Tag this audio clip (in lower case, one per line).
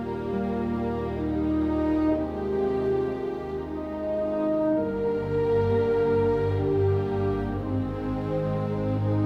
music